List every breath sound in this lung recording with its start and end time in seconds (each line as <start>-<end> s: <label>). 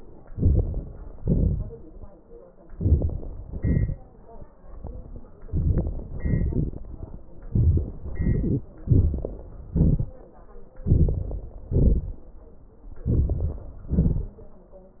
0.19-1.15 s: crackles
0.22-1.15 s: inhalation
1.14-2.13 s: exhalation
2.62-3.51 s: crackles
2.63-3.51 s: inhalation
3.49-4.52 s: exhalation
5.43-6.15 s: inhalation
5.43-6.15 s: crackles
6.17-7.37 s: exhalation
6.17-7.37 s: crackles
7.47-8.01 s: inhalation
7.99-8.80 s: exhalation
8.02-8.82 s: crackles
8.81-9.72 s: inhalation
8.82-9.72 s: crackles
9.72-10.84 s: exhalation
10.83-11.69 s: inhalation
10.83-11.69 s: crackles
11.69-12.74 s: exhalation
12.99-13.86 s: inhalation
12.99-13.86 s: crackles
13.85-14.63 s: exhalation